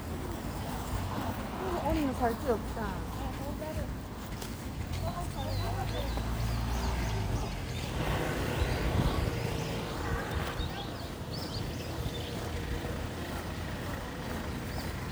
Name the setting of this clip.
residential area